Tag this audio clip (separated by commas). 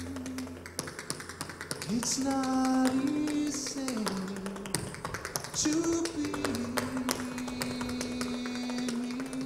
tap dancing